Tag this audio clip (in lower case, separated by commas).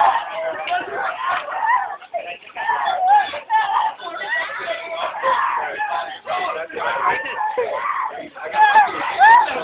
speech